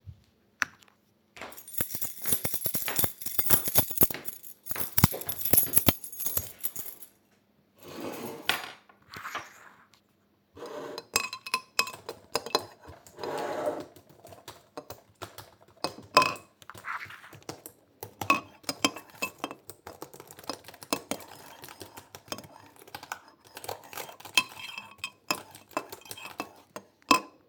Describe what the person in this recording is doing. I walked while holding a keychain producing jingling sounds. After sitting down I began typing on a keyboard. My phone rang briefly while I was typing. A cup was stirred in the background creating additional sound.